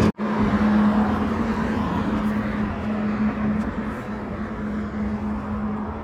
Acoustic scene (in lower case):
residential area